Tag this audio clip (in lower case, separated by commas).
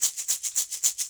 music, musical instrument, percussion, rattle (instrument)